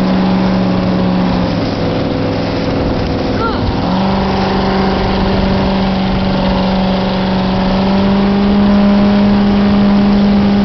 A loud motorboat speeds down the water